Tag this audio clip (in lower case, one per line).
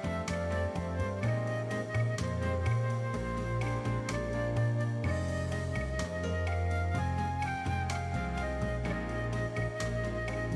music